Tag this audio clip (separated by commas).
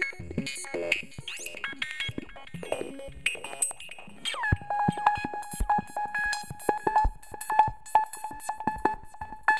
Synthesizer, Music, Drum machine